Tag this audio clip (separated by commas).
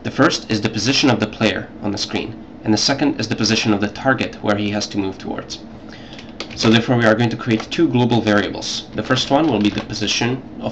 Speech